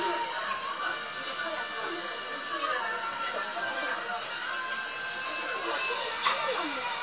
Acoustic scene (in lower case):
restaurant